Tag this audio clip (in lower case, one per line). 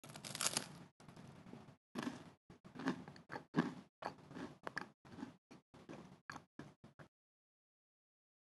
chewing